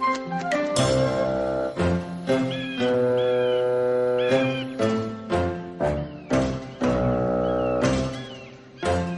Very bold music plays over chirping birds